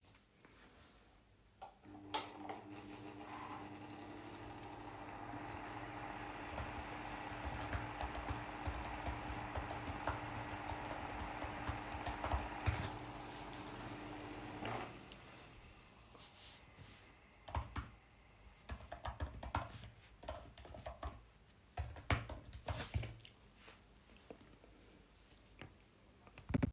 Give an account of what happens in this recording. I turn on table fan, starts typing on my laptop, turns the fan off, continues typing on my laptop.